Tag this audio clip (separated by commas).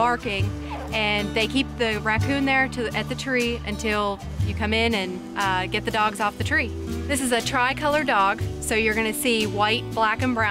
Speech, Music